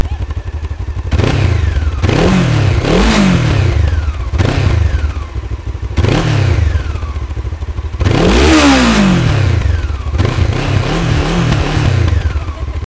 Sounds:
motorcycle, motor vehicle (road), vehicle

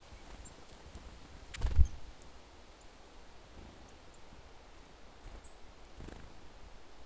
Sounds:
bird, animal, wild animals

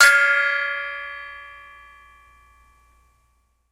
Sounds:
music, percussion, musical instrument, gong

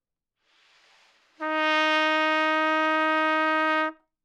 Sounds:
brass instrument, music, musical instrument, trumpet

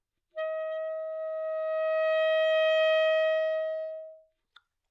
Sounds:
woodwind instrument, music, musical instrument

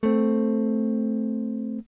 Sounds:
guitar, musical instrument, strum, electric guitar, plucked string instrument, music

